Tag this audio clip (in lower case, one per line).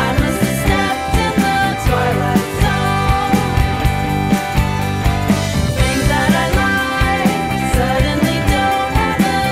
music
musical instrument
singing
pop music
drum kit